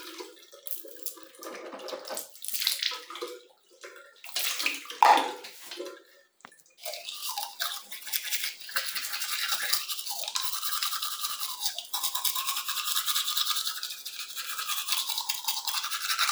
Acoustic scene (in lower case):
restroom